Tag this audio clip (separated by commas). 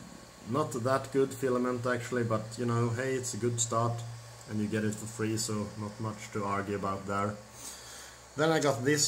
Speech